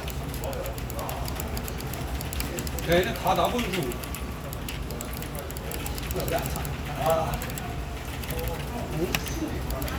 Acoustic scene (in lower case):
crowded indoor space